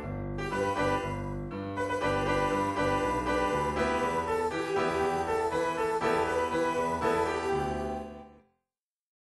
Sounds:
music

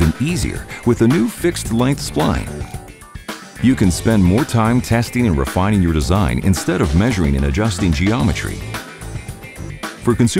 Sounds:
music
speech

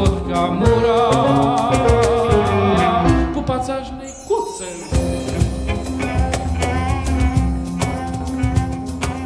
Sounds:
bowed string instrument
cello

